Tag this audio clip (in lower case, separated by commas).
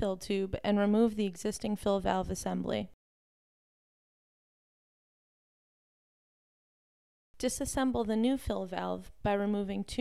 speech